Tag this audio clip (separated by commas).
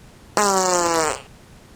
Fart